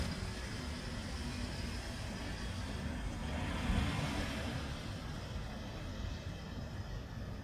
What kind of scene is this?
residential area